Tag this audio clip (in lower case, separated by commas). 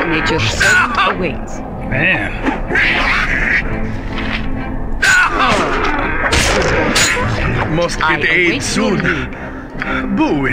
speech, music